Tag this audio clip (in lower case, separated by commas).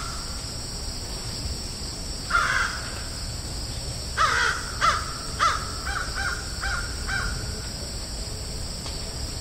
crow cawing